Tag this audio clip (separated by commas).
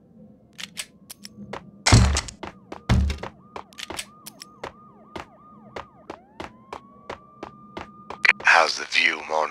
Speech